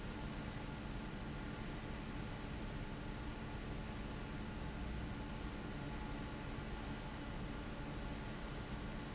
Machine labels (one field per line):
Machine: fan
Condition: abnormal